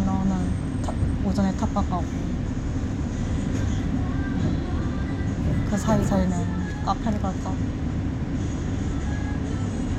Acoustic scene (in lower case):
bus